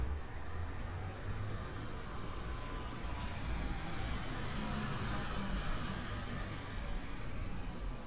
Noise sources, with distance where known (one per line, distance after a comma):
engine of unclear size, near